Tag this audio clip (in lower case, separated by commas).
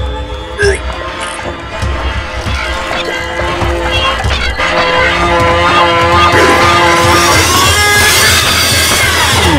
music